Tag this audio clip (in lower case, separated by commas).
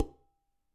domestic sounds, dishes, pots and pans